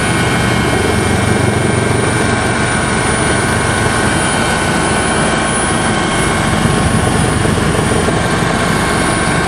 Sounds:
vehicle, outside, urban or man-made

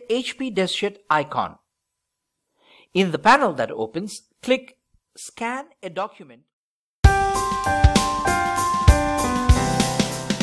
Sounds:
speech, music

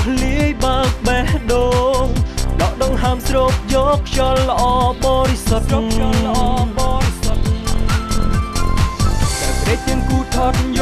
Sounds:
soundtrack music, music

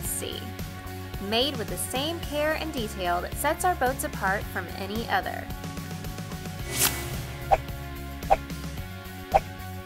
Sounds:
music, speech

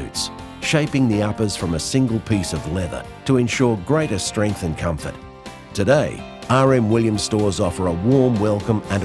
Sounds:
speech, music

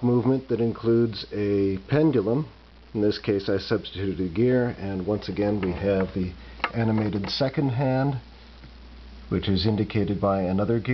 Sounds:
speech

